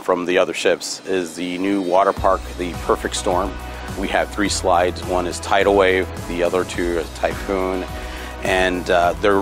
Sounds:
music, speech

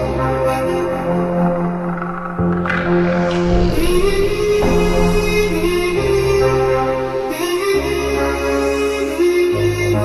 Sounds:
music, electronic music, techno

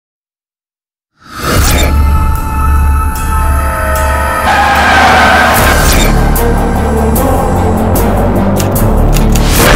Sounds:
whoosh

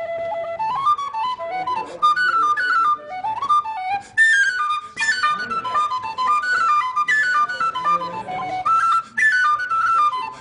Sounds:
inside a large room or hall, music, speech

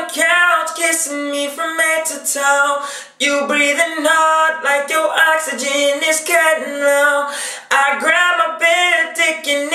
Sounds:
male speech, music

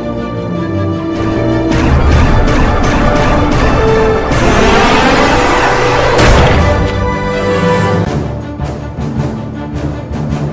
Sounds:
theme music

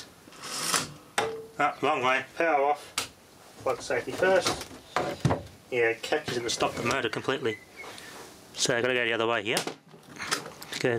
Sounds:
speech

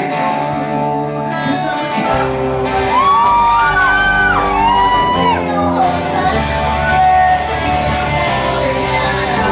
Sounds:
inside a large room or hall, shout, music, singing

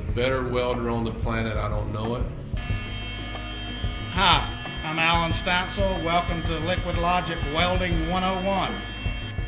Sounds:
music, speech

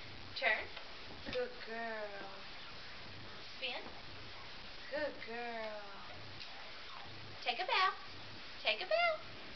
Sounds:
speech

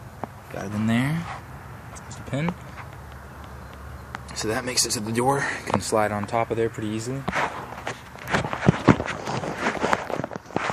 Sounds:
tap, speech

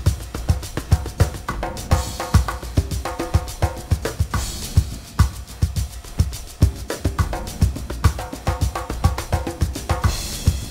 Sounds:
soundtrack music, music

